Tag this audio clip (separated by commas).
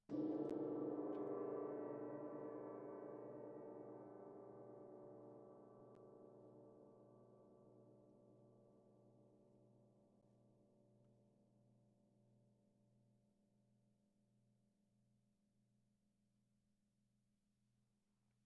Musical instrument, Gong, Music, Percussion